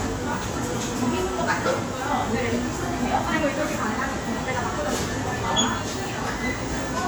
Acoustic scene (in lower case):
crowded indoor space